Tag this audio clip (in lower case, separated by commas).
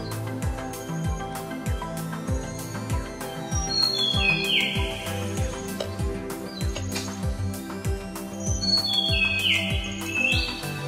music